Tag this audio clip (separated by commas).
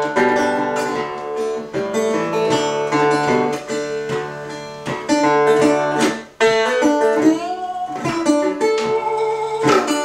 Music, Banjo